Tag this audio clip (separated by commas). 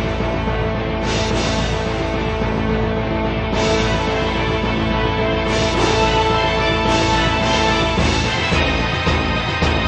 Independent music, Music